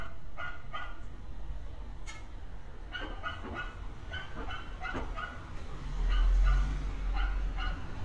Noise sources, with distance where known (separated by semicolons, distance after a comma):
dog barking or whining, near